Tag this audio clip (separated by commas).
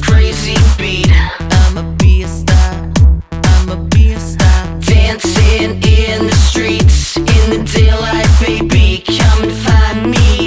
Music, Dance music